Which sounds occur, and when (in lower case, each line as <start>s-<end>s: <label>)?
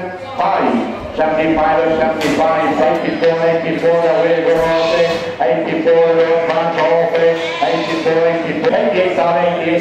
0.1s-9.8s: man speaking
7.1s-8.4s: bleat